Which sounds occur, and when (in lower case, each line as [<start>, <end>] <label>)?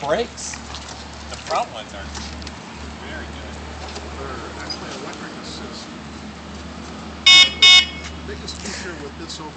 [0.00, 0.56] man speaking
[0.00, 9.55] conversation
[0.00, 9.55] motorcycle
[0.48, 1.60] generic impact sounds
[1.28, 2.09] man speaking
[2.11, 2.54] generic impact sounds
[2.92, 3.30] man speaking
[3.74, 4.03] generic impact sounds
[4.16, 5.90] man speaking
[4.56, 5.31] generic impact sounds
[7.24, 8.05] car horn
[8.21, 9.55] man speaking
[8.44, 8.77] generic impact sounds